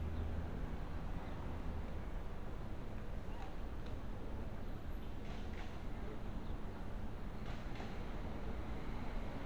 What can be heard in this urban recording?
background noise